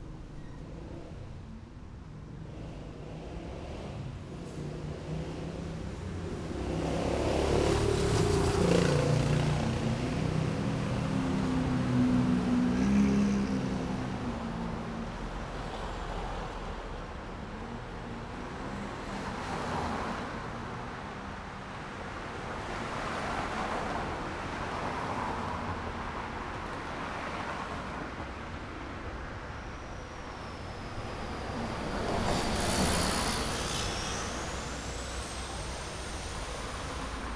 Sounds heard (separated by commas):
car engine accelerating, car wheels rolling, bus wheels rolling, bus engine accelerating, car, bus, motorcycle, motorcycle engine accelerating